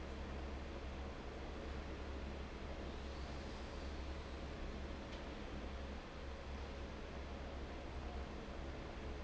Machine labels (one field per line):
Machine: fan